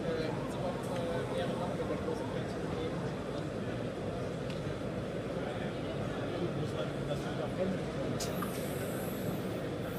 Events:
0.0s-9.9s: speech babble
0.0s-9.9s: mechanisms
0.9s-1.1s: tick
3.3s-3.5s: tick
4.5s-4.6s: tick
8.2s-9.5s: printer

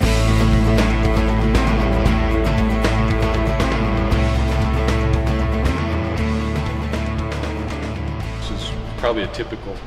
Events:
0.0s-9.8s: music
8.4s-8.8s: man speaking
9.0s-9.8s: man speaking

